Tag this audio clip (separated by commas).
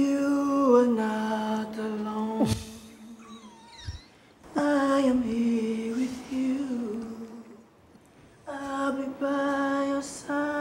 Singing, inside a large room or hall